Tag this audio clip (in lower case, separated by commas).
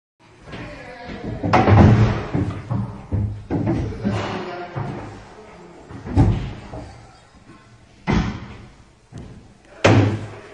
speech, inside a large room or hall